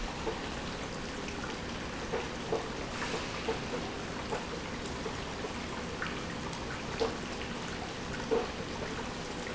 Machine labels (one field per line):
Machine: pump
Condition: abnormal